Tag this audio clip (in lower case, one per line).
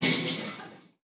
bell